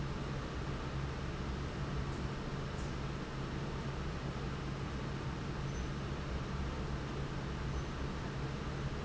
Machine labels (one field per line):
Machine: fan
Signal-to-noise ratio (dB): -6 dB